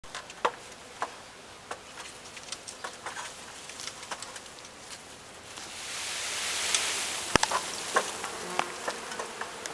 Insects are buzzing and something swooshes